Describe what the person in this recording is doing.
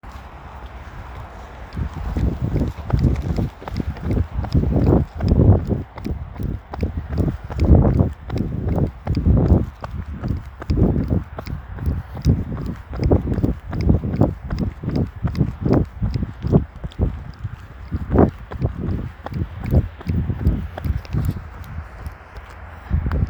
this sound is recorded while running and there is considerable amount of wind blowing and also sound of moving automobiles such as cars, trucks at the background.